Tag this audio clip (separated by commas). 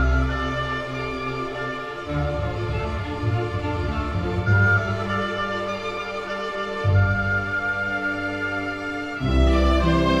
Music